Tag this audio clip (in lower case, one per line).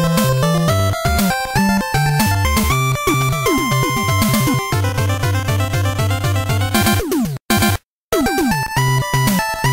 music
soundtrack music